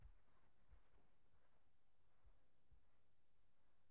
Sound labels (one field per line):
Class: footsteps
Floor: carpet